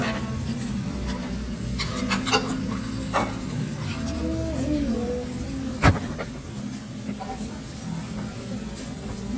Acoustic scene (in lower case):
restaurant